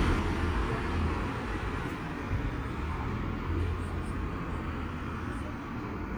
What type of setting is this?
street